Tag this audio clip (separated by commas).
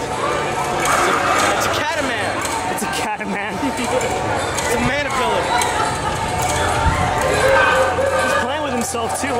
Speech